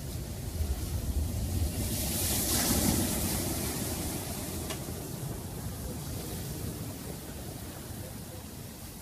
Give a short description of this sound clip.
Waves crashing softly